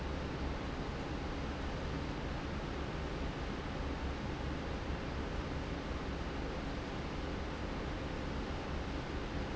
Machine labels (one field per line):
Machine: fan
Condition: normal